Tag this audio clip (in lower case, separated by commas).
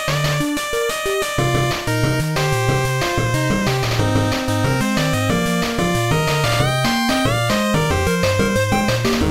video game music, rock and roll, music, background music